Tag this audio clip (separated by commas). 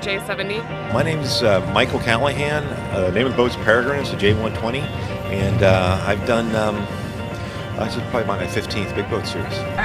Music, Speech